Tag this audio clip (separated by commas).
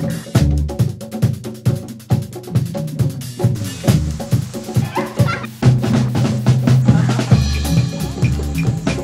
Drum roll, Drum, Music